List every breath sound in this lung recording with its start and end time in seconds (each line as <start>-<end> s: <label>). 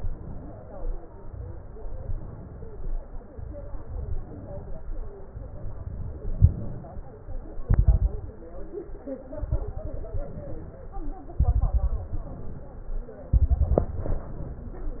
1.84-2.87 s: inhalation
3.31-4.33 s: inhalation
7.64-8.52 s: exhalation
7.64-8.52 s: crackles
9.37-10.27 s: exhalation
9.37-10.27 s: crackles
10.24-11.14 s: inhalation
11.40-12.27 s: exhalation
11.40-12.27 s: crackles
12.29-13.19 s: inhalation
13.38-14.25 s: exhalation
13.38-14.25 s: crackles
14.29-15.00 s: inhalation